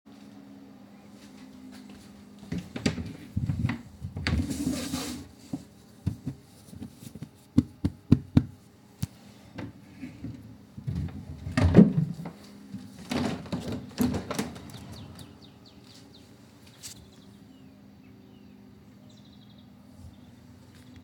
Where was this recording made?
lavatory